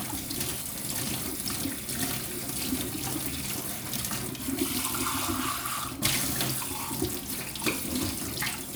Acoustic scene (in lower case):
kitchen